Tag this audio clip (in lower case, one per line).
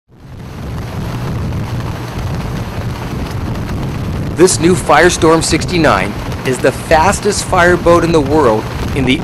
vehicle
speech
boat